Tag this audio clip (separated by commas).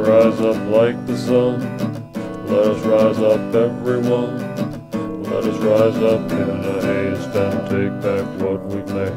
Music, Musical instrument, Guitar, Acoustic guitar